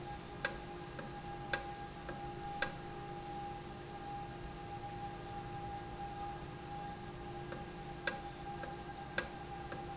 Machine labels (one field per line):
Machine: valve